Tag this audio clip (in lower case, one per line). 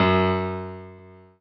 musical instrument
piano
music
keyboard (musical)